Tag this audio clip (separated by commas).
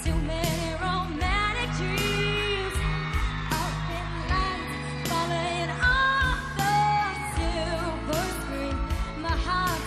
Music of Asia, Song, Pop music, Singing